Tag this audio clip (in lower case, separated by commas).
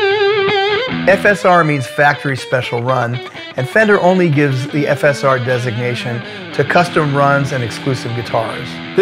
guitar, musical instrument, speech, music, electric guitar